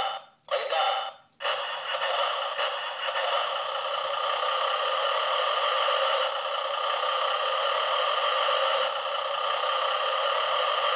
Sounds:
Car

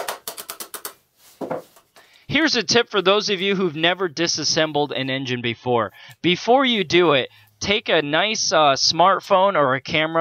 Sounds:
Speech

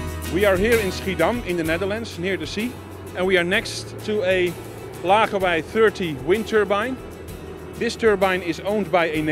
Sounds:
Wind noise (microphone), Music, Speech

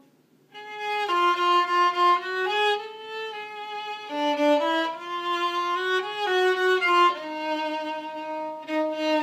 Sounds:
fiddle, Musical instrument, Music

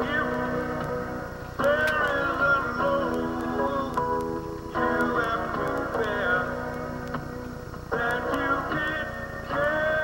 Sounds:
Music

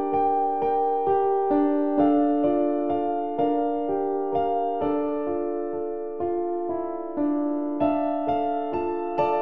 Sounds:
Music

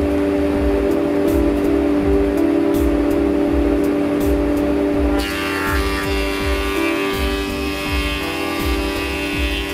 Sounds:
planing timber

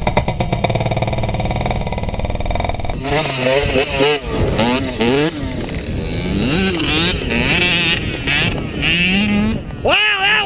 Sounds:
Speech, Vehicle, Motor vehicle (road), Motorcycle

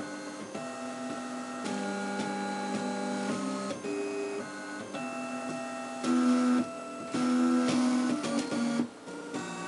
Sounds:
Printer, Music

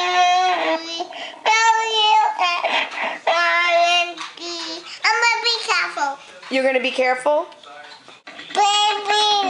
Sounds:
Child singing, Speech

